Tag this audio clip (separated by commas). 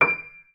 Piano, Musical instrument, Keyboard (musical), Music